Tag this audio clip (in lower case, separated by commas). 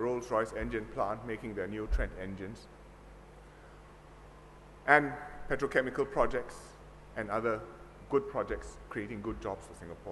speech, monologue, male speech